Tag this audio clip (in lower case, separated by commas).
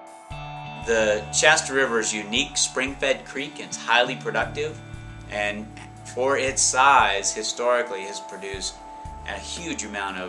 chime